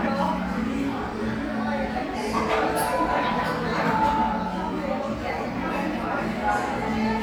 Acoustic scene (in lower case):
crowded indoor space